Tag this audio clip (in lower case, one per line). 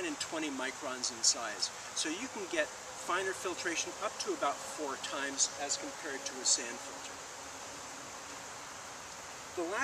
speech
outside, rural or natural